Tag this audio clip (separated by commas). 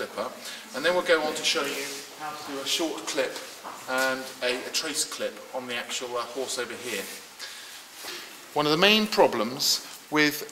Speech